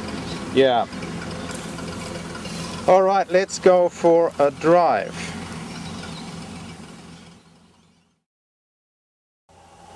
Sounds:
car
speech
vehicle

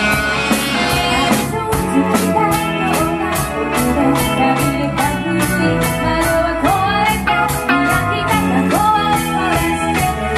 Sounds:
music
rock music
guitar
cymbal
drum kit
percussion
musical instrument
drum
bass drum

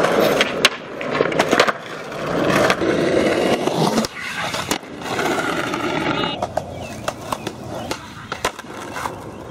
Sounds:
skateboarding

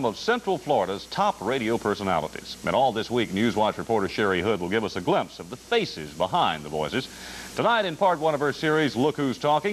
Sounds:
speech

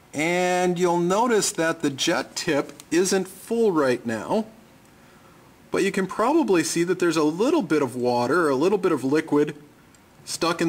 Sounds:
speech

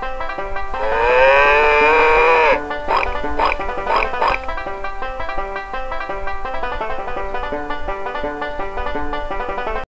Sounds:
music
oink

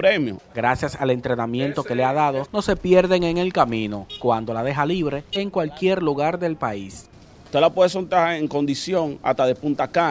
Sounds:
speech
pigeon
outside, urban or man-made
bird

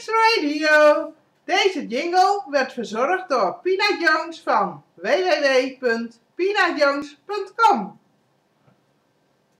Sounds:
speech

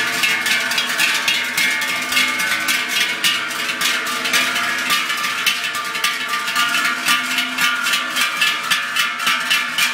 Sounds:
bovinae cowbell

